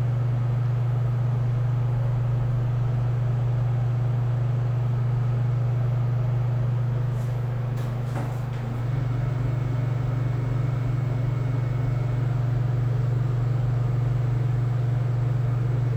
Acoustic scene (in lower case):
elevator